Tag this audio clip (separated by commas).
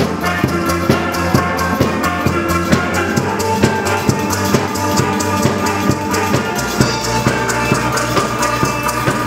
Percussion, Drum